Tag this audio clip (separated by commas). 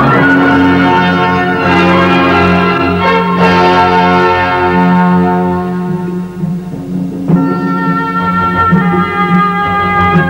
Background music, Music